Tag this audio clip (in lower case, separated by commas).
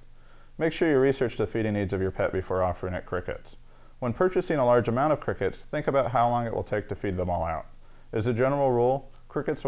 speech